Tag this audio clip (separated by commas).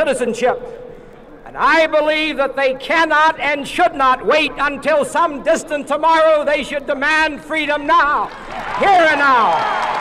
Speech, man speaking, monologue